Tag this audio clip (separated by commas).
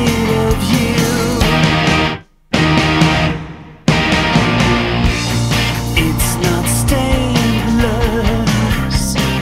Musical instrument, Guitar, Grunge, Music